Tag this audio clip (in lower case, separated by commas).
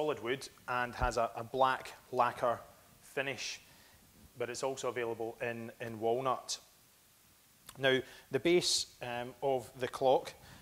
speech